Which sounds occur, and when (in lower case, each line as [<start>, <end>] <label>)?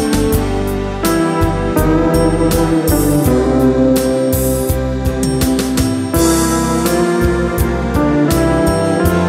[0.00, 9.25] music